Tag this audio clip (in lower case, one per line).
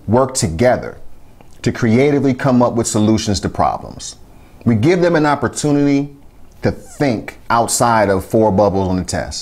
speech